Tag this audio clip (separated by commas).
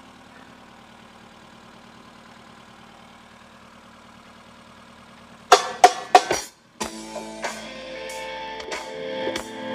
Music